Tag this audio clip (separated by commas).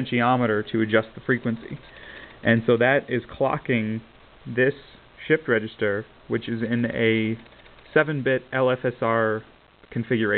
Speech